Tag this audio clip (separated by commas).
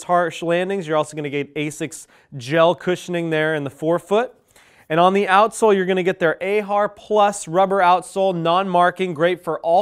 Speech